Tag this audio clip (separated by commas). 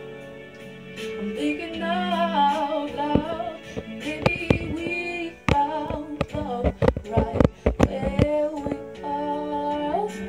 Music, inside a small room, Singing